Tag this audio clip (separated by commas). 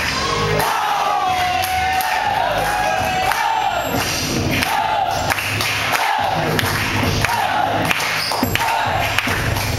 Music